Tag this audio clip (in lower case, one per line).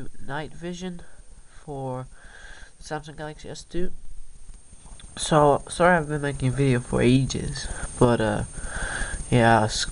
speech